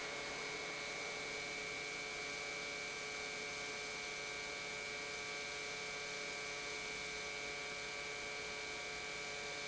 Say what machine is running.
pump